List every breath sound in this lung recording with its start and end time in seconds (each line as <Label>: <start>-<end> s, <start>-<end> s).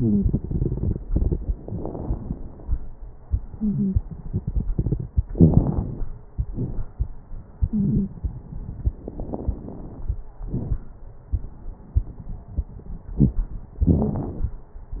Inhalation: 5.36-6.24 s, 8.98-10.16 s
Exhalation: 6.34-7.07 s, 10.46-10.83 s
Wheeze: 3.53-3.96 s, 7.68-8.11 s
Crackles: 5.36-6.24 s, 6.34-7.07 s, 8.98-10.16 s, 10.46-10.83 s